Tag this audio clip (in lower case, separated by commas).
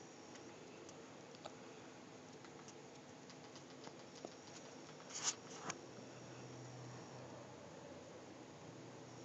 inside a small room